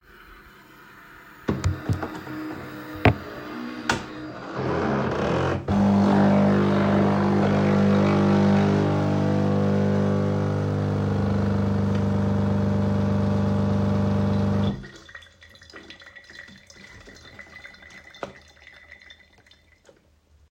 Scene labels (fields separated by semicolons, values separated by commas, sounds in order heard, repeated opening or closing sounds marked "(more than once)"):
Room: office; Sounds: coffee machine